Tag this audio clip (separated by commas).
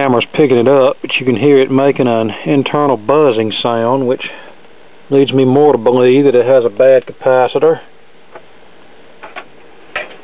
Speech